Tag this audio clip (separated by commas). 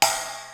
Crash cymbal, Music, Musical instrument, Cymbal, Percussion